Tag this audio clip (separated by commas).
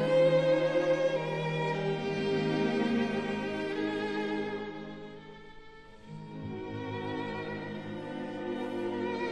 fiddle, Musical instrument, Music